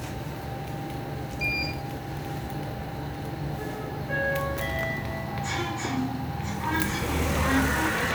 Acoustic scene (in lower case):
elevator